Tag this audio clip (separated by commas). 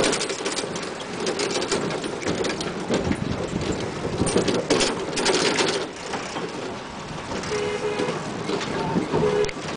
Vehicle